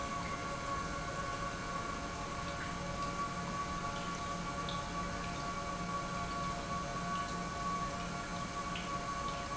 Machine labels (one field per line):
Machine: pump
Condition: normal